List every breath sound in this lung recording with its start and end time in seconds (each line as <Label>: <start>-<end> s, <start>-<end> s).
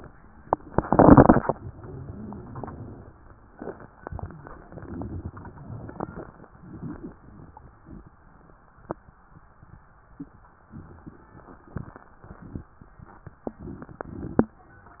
Inhalation: 1.57-3.15 s
Stridor: 1.57-2.52 s